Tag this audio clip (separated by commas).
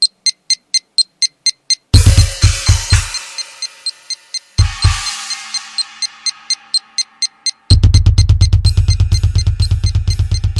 Drum kit, Snare drum, Drum, Bass drum, Music, Musical instrument